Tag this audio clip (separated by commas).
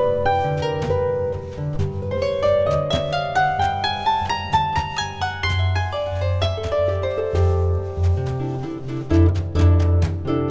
playing harp